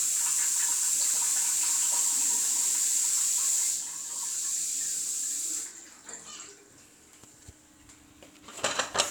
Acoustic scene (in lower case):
restroom